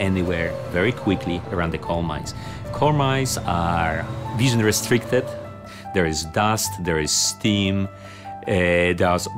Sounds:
speech, music

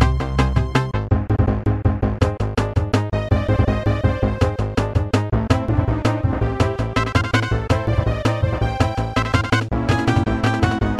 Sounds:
country, music

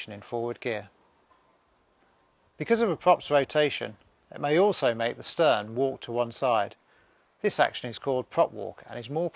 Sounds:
speech

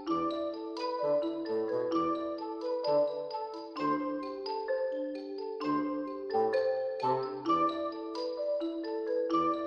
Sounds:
music

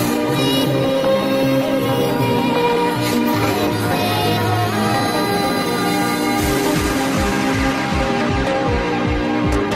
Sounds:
music

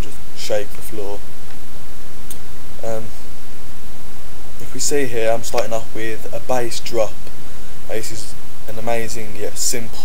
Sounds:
speech

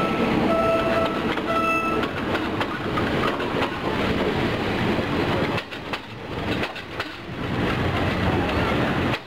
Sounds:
vehicle, train wagon, train whistle, train

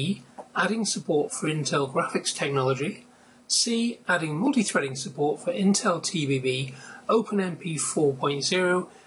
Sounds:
speech

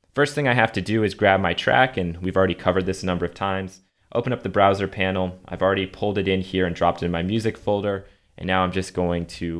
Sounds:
speech

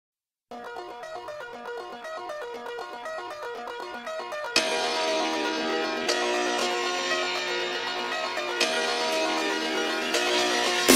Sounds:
music

